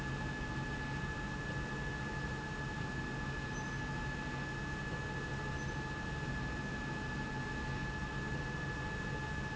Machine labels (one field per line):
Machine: slide rail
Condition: normal